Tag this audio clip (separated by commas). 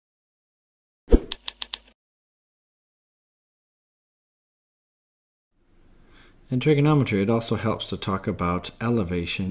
Speech